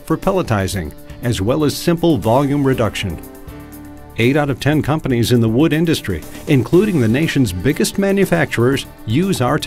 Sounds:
speech, music

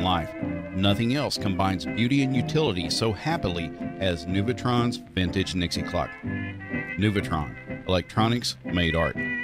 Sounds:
music, speech

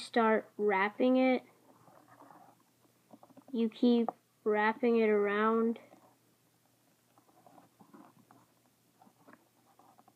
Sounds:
speech

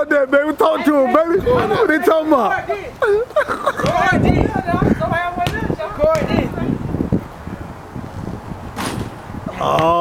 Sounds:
speech

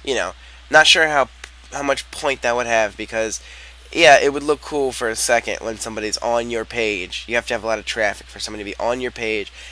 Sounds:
speech

